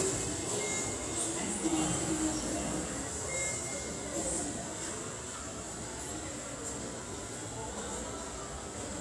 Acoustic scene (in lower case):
subway station